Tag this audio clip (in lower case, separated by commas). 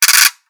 music, ratchet, percussion, mechanisms, musical instrument